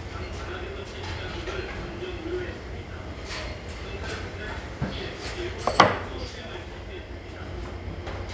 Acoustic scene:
restaurant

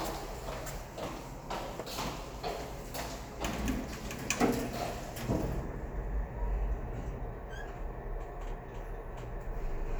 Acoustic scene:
elevator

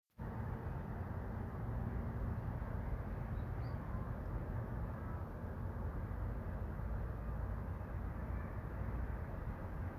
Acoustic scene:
residential area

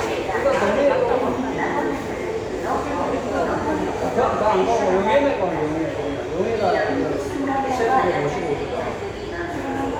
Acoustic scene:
subway station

